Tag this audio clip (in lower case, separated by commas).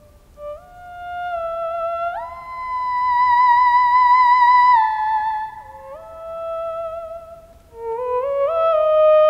playing theremin